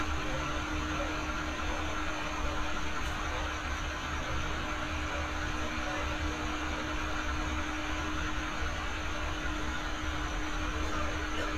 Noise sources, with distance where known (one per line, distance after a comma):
large-sounding engine, near
person or small group talking
dog barking or whining, far